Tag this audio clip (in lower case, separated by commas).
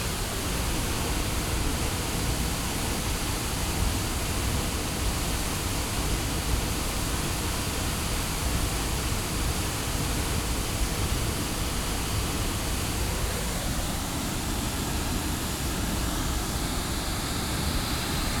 water